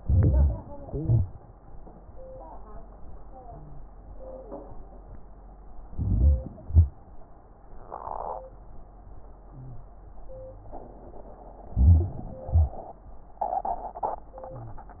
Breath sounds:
0.00-0.83 s: inhalation
0.87-1.47 s: exhalation
0.87-1.47 s: crackles
5.94-6.68 s: inhalation
6.69-7.04 s: exhalation
11.75-12.48 s: inhalation
12.48-13.21 s: exhalation

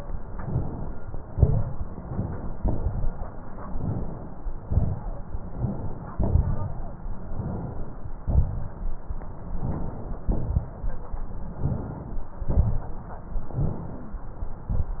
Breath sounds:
0.30-0.95 s: inhalation
1.31-1.76 s: wheeze
1.31-1.86 s: exhalation
1.94-2.60 s: inhalation
2.58-3.28 s: exhalation
3.60-4.29 s: inhalation
4.63-5.25 s: wheeze
4.67-5.22 s: exhalation
5.52-6.15 s: inhalation
6.18-6.84 s: wheeze
6.18-6.85 s: exhalation
7.34-8.01 s: inhalation
8.25-8.88 s: exhalation
9.56-10.25 s: inhalation
10.30-10.87 s: exhalation
11.59-12.28 s: inhalation
12.43-13.00 s: exhalation
13.47-14.16 s: inhalation
13.53-14.20 s: wheeze

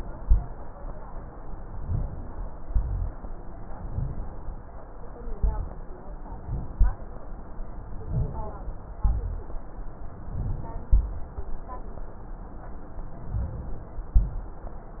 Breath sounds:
1.71-2.35 s: inhalation
2.71-3.15 s: exhalation
2.71-3.15 s: rhonchi
3.79-4.54 s: inhalation
5.33-5.94 s: exhalation
6.22-6.74 s: inhalation
6.75-7.06 s: exhalation
7.87-8.58 s: inhalation
8.99-9.58 s: rhonchi
10.91-11.52 s: exhalation
13.32-14.10 s: inhalation
14.15-14.76 s: exhalation

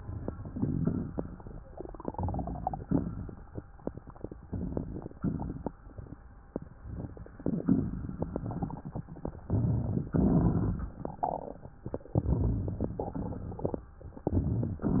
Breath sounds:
2.08-2.83 s: inhalation
2.83-3.63 s: exhalation
4.45-5.17 s: inhalation
5.18-5.75 s: exhalation
6.73-7.64 s: inhalation
7.65-9.33 s: exhalation
9.46-10.13 s: inhalation
10.13-10.94 s: exhalation
12.12-12.96 s: inhalation
12.96-13.85 s: exhalation
14.28-14.85 s: inhalation
14.85-15.00 s: exhalation

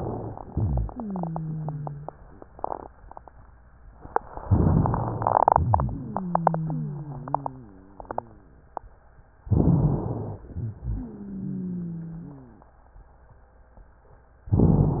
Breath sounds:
0.49-2.13 s: wheeze
4.46-5.45 s: inhalation
4.46-5.45 s: crackles
5.52-6.28 s: exhalation
5.52-7.80 s: wheeze
9.45-10.46 s: inhalation
9.45-10.46 s: crackles
10.49-11.20 s: exhalation
10.49-12.66 s: wheeze

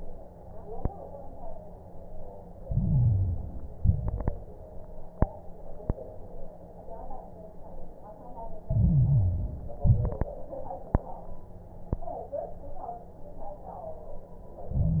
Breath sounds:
2.60-3.76 s: inhalation
2.60-3.76 s: crackles
3.76-4.39 s: exhalation
3.76-4.39 s: crackles
8.64-9.80 s: inhalation
8.64-9.80 s: crackles
9.82-10.34 s: exhalation
9.82-10.34 s: crackles
14.73-15.00 s: inhalation
14.73-15.00 s: crackles

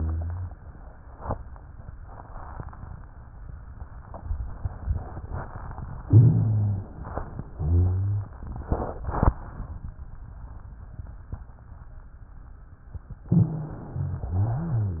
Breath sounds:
0.00-0.54 s: rhonchi
6.04-6.97 s: rhonchi
6.04-7.43 s: inhalation
7.49-8.43 s: exhalation
7.49-8.43 s: rhonchi
13.27-14.28 s: inhalation
13.27-14.28 s: rhonchi
14.33-15.00 s: exhalation
14.33-15.00 s: rhonchi

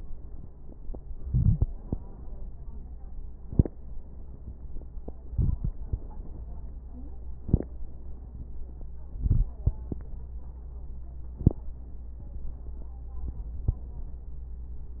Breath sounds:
1.20-1.75 s: inhalation
5.29-5.74 s: inhalation
5.29-5.74 s: crackles
9.14-9.59 s: inhalation

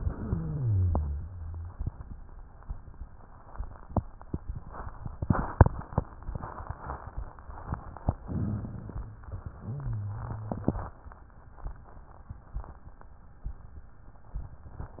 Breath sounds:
0.00-1.76 s: exhalation
0.00-1.76 s: wheeze
8.24-9.10 s: inhalation
9.10-11.12 s: exhalation
9.54-11.12 s: wheeze

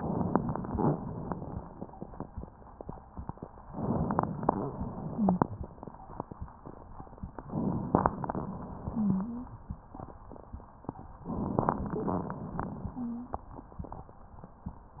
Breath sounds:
5.07-5.45 s: wheeze
8.89-9.55 s: wheeze
12.93-13.43 s: wheeze

